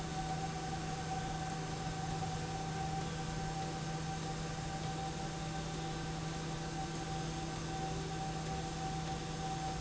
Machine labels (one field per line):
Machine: slide rail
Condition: abnormal